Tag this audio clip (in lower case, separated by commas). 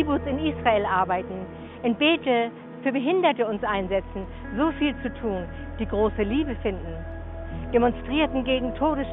speech, music